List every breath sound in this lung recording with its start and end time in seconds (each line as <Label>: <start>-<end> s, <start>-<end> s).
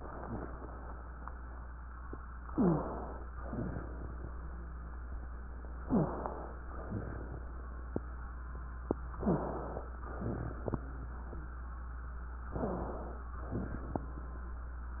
Inhalation: 2.47-3.25 s, 5.78-6.59 s, 9.13-9.96 s, 12.51-13.25 s
Exhalation: 3.35-4.30 s, 6.65-7.47 s, 10.02-10.82 s, 13.43-14.10 s
Wheeze: 2.47-2.87 s, 5.78-6.22 s, 9.13-9.50 s, 12.51-13.25 s
Rhonchi: 3.41-4.02 s, 6.83-7.43 s, 10.16-10.62 s, 13.43-14.10 s